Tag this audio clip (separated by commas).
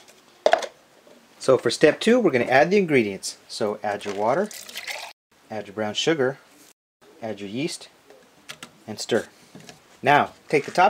Speech